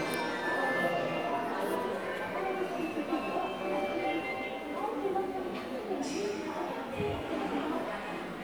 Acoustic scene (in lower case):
subway station